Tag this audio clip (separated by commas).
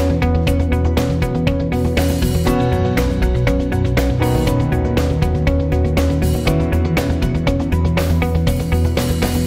Music